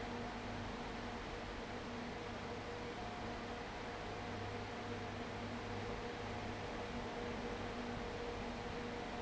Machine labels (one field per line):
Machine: fan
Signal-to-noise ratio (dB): 6 dB